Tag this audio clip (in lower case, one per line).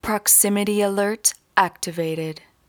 human voice
speech
woman speaking